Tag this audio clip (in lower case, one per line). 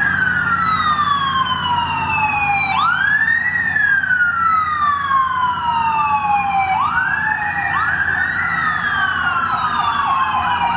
police car (siren)